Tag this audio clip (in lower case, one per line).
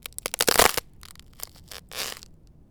crack